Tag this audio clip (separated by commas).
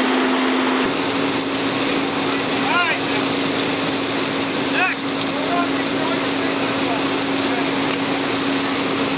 Truck, Speech